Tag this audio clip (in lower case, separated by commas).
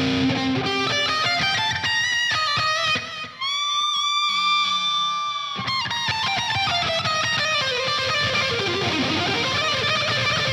musical instrument, electric guitar, music, guitar, plucked string instrument